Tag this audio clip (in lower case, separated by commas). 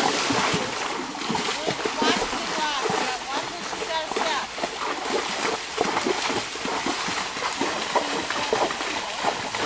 horse, animal, speech, clip-clop